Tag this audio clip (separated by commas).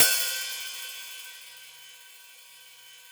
Cymbal, Hi-hat, Musical instrument, Music, Percussion